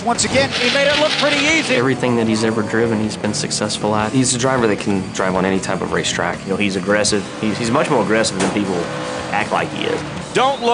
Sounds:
Speech, man speaking, monologue

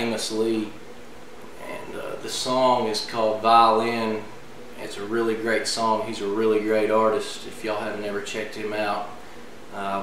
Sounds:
Speech

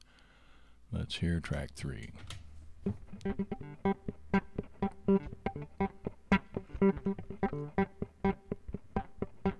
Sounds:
Music, Speech

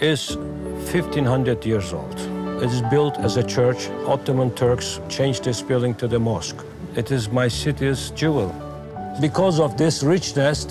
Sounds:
Music, Speech

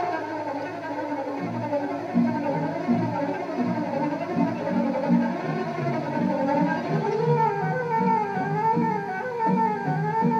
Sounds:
Music

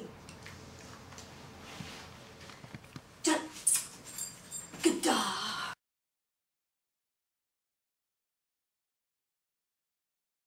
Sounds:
Speech

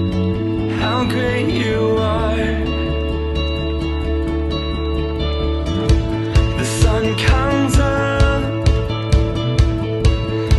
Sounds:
Plucked string instrument, Guitar, Musical instrument, Strum, Music

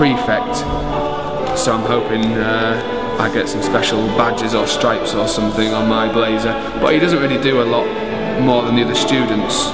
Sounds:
Music, Speech

